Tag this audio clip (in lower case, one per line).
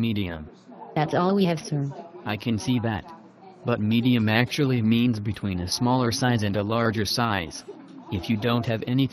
speech